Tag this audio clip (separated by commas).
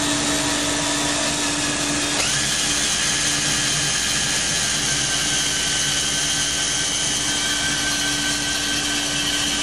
inside a large room or hall, Drill